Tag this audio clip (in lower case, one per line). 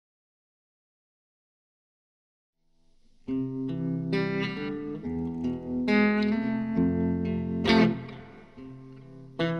music